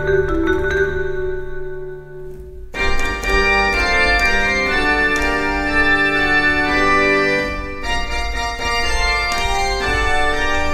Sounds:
Musical instrument, Keyboard (musical), Vibraphone, Music

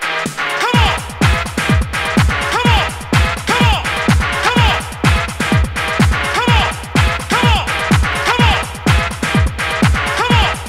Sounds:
Music

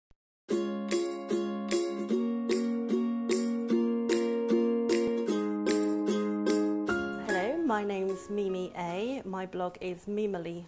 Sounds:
Music, Speech

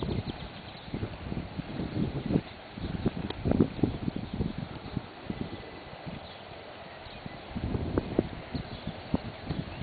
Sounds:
Clip-clop, Animal, Horse

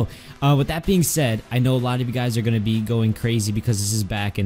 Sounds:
Speech, Music

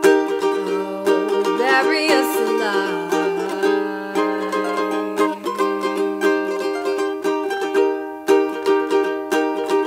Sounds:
Musical instrument, Singing, Ukulele, Music, Plucked string instrument

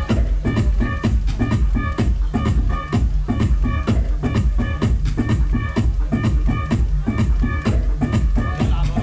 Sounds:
Speech, Music

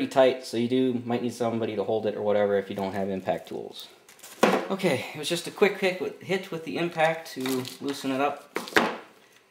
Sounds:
inside a large room or hall, Speech

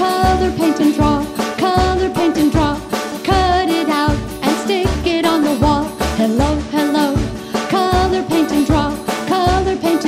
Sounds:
Jingle (music), Singing, Music

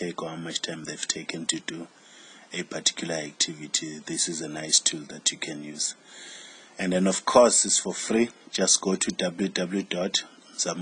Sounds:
Speech

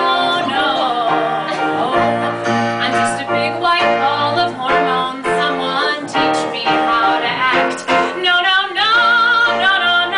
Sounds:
Female singing, Music

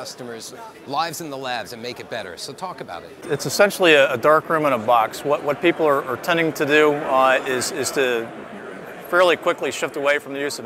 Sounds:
Speech

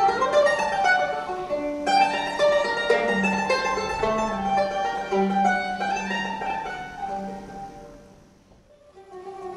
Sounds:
Mandolin, Musical instrument, Plucked string instrument, Music, Pizzicato

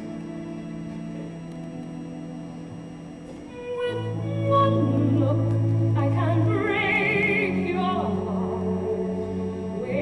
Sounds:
Opera

